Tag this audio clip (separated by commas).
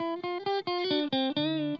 Electric guitar, Guitar, Plucked string instrument, Music, Musical instrument